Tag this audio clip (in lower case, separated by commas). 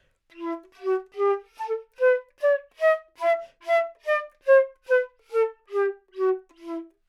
musical instrument, wind instrument, music